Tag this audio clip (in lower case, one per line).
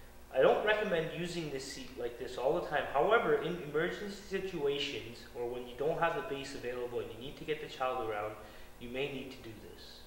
speech
inside a large room or hall